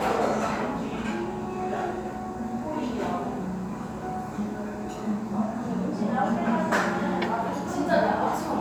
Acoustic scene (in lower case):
restaurant